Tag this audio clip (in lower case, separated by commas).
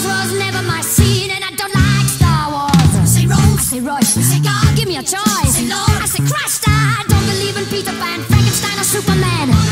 music